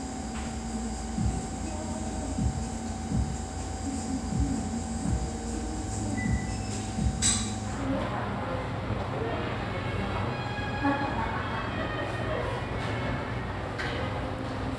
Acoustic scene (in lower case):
cafe